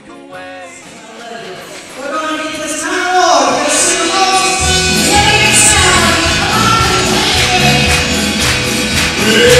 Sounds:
female singing, music, speech

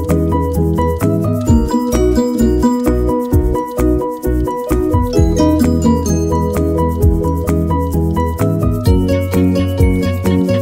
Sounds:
music

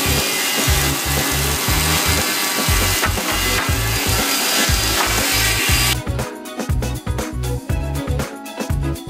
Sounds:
wood, sawing

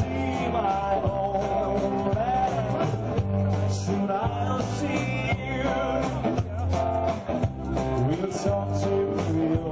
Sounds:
speech, male singing, music

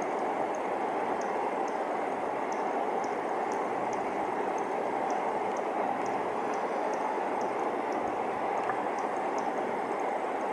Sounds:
cricket chirping

